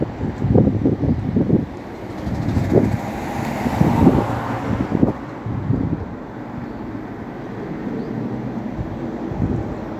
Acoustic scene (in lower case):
street